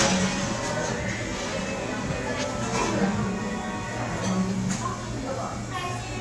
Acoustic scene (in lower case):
cafe